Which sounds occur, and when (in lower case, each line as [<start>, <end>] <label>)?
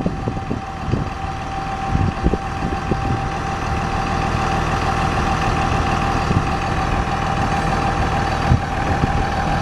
[0.00, 0.53] wind noise (microphone)
[0.00, 9.61] truck
[0.00, 9.61] wind
[0.79, 1.33] wind noise (microphone)
[1.82, 3.25] wind noise (microphone)
[8.77, 9.61] wind noise (microphone)